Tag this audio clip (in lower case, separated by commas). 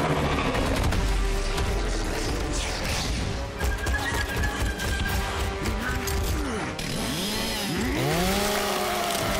speech